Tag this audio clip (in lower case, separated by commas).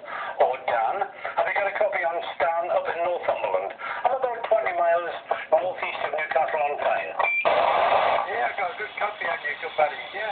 radio, speech